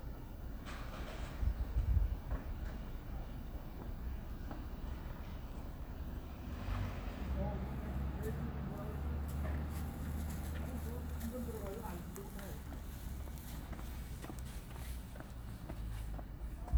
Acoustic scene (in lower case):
residential area